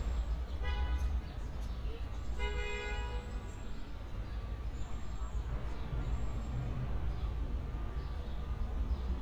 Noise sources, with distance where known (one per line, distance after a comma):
car horn, near
person or small group talking